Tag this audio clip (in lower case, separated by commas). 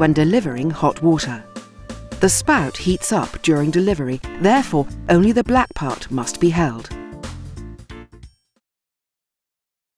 music, speech